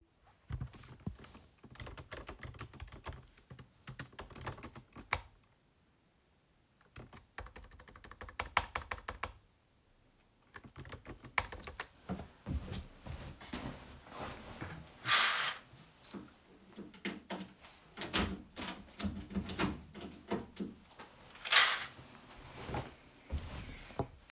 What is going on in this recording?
I typed on the laptop keyboard while sitting at the desk and then opened the window.